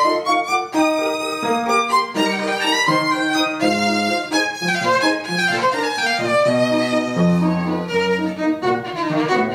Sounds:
violin, music, musical instrument

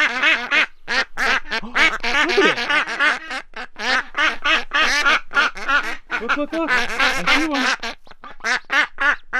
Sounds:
duck quacking

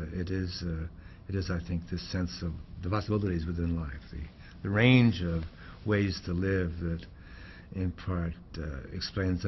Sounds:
speech

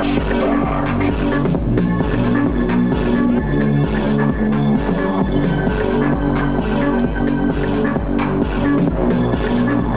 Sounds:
music, electronic music

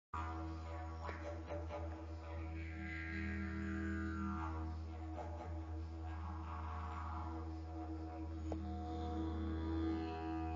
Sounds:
playing didgeridoo

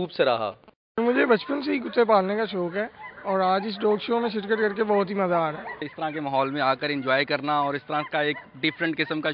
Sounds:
speech

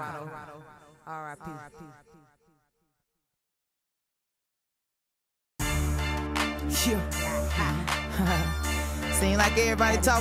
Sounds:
speech, music

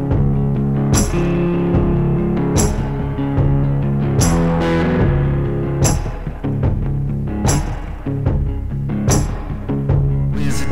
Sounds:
blues, musical instrument, music, plucked string instrument, strum, guitar

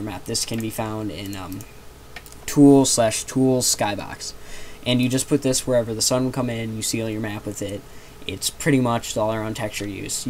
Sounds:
speech

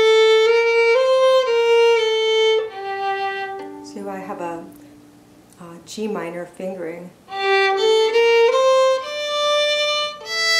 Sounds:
speech, musical instrument, violin, music

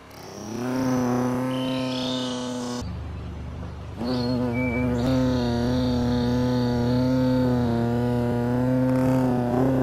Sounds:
bee

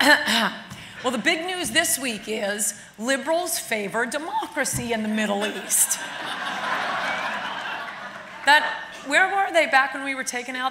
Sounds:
narration, female speech, speech

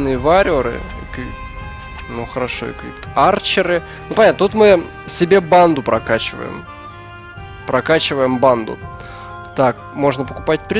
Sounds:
speech, music

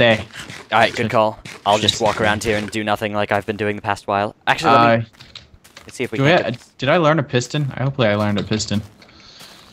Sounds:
speech

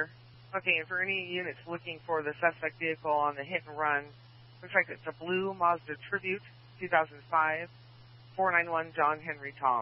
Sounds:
police radio chatter

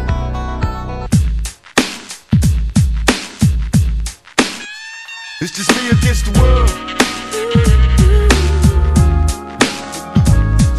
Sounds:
music, sampler

